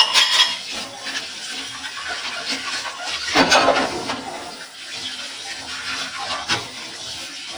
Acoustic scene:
kitchen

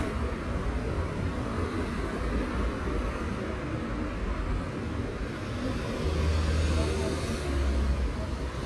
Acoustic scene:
street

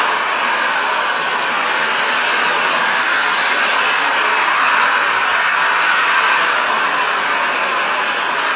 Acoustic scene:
street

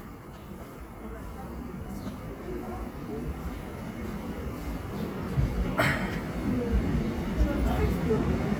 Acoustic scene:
subway station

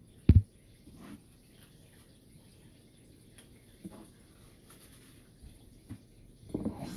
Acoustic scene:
kitchen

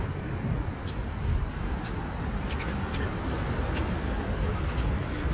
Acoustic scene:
street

